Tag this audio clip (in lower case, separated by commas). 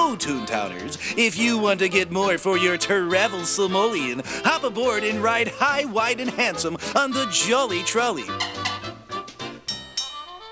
music, speech